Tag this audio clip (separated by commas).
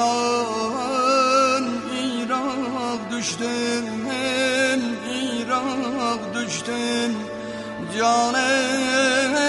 Music, Sad music